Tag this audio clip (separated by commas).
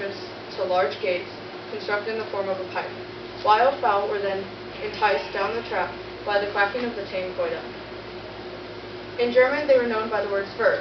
Speech